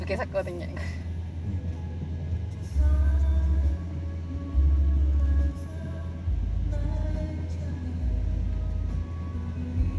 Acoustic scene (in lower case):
car